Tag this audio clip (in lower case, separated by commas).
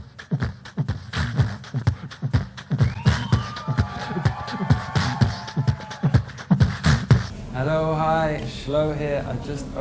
speech, music